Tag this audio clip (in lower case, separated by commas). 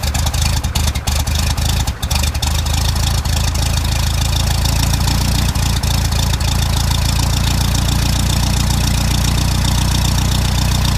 vehicle, vroom